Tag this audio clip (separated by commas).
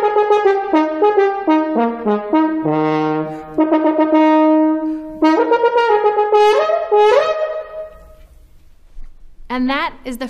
playing french horn